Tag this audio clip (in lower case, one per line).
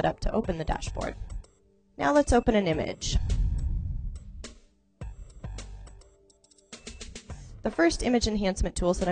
speech
music